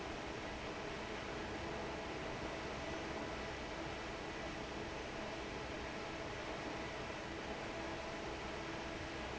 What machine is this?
fan